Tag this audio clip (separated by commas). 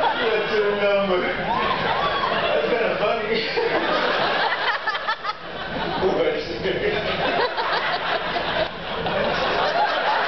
Speech